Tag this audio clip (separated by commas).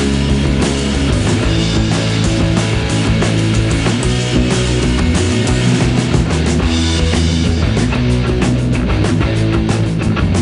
Punk rock